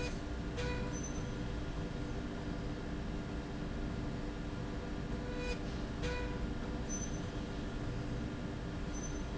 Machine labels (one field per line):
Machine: slide rail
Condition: normal